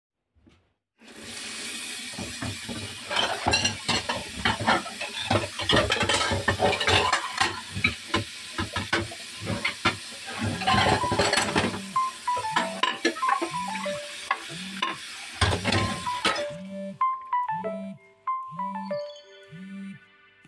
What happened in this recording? I was washing the dishes with running water and the phone rang.